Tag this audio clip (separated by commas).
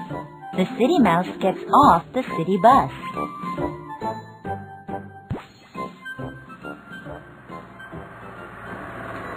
Speech, Music